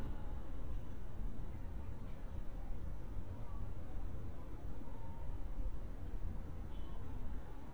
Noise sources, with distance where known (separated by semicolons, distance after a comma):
car horn, far; person or small group talking, far